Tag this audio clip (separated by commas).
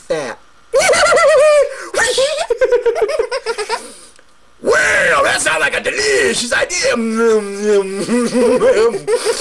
Speech